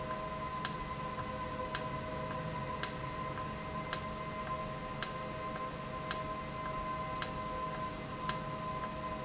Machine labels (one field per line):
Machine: valve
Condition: normal